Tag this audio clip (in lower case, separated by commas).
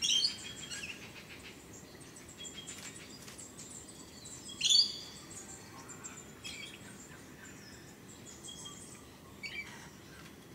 animal